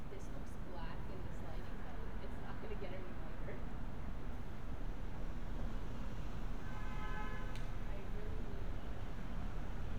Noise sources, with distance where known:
car horn, far
person or small group talking, near

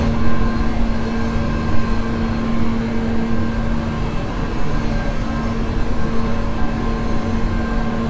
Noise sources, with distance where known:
rock drill, near

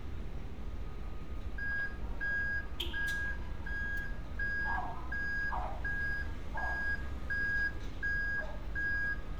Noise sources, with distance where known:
reverse beeper, near
dog barking or whining, far

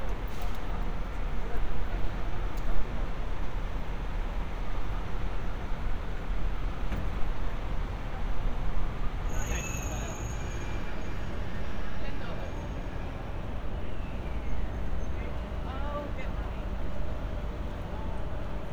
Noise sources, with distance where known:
person or small group talking

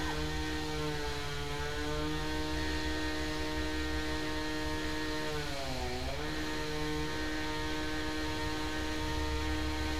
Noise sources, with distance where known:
chainsaw, far

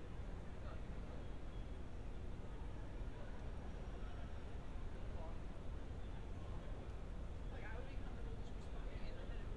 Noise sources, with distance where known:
person or small group talking, far

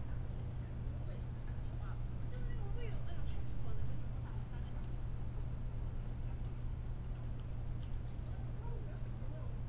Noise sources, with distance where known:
person or small group talking

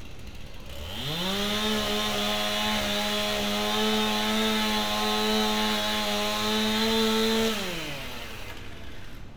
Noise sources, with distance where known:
chainsaw, near

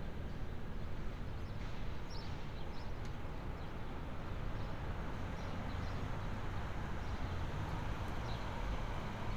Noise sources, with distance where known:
background noise

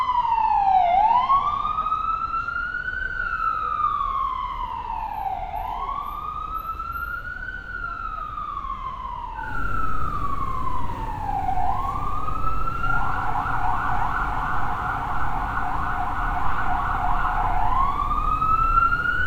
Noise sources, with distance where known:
siren

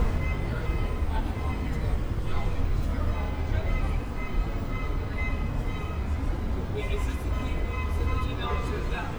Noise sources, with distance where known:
unidentified alert signal, far
person or small group talking

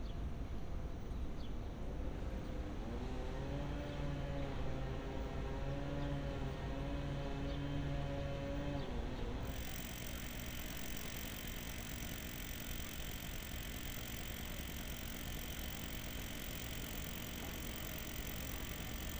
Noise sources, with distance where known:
small-sounding engine

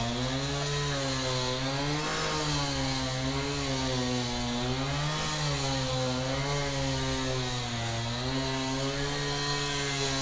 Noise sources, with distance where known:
unidentified powered saw

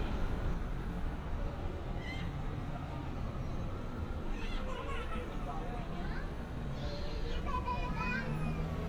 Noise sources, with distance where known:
person or small group talking

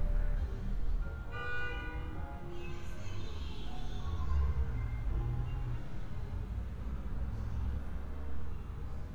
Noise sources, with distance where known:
car horn, near

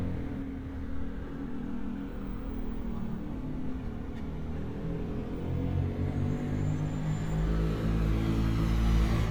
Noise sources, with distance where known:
small-sounding engine, near

